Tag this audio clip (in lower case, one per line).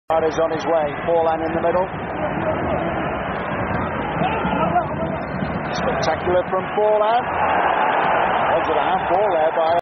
speech